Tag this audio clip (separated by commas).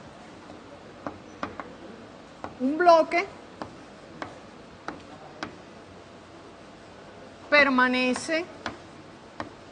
Speech